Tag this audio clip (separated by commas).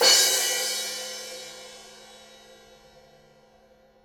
Music, Musical instrument, Percussion, Crash cymbal, Cymbal